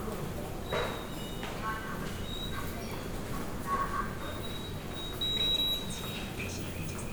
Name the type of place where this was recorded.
subway station